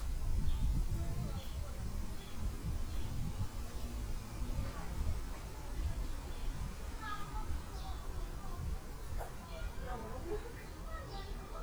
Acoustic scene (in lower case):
park